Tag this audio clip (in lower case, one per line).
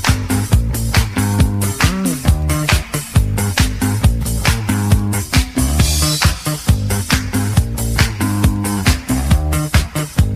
music